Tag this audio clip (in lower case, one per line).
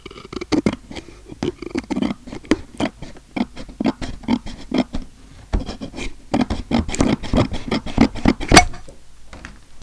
tools